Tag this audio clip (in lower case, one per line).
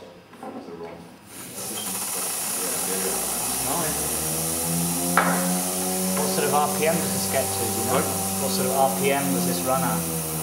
speech